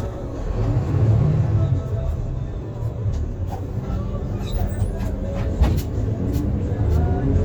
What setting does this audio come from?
bus